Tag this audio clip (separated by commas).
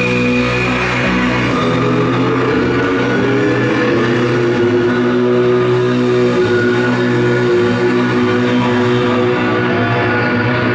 Music